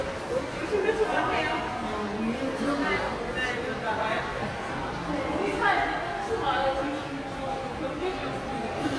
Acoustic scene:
subway station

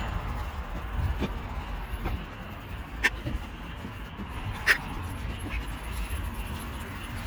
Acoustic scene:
park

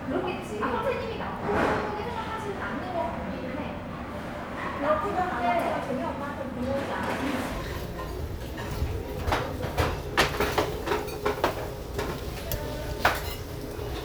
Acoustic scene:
restaurant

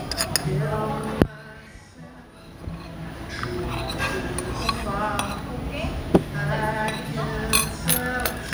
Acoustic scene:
restaurant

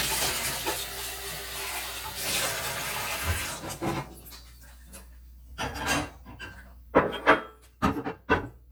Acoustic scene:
kitchen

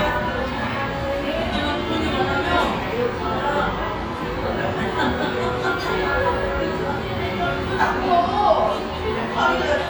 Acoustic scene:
restaurant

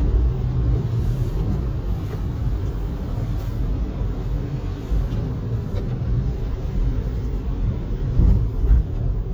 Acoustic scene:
car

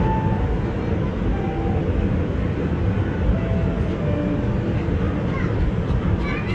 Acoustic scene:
park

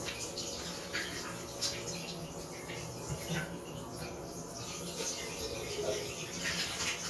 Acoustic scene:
restroom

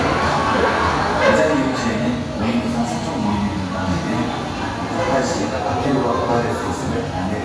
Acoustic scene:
crowded indoor space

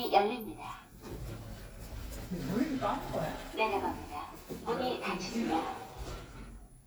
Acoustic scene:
elevator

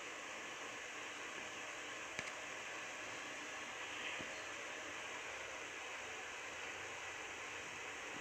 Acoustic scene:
subway train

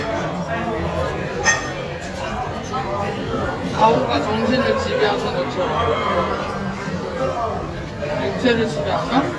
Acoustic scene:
restaurant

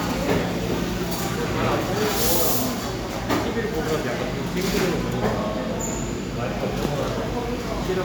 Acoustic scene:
cafe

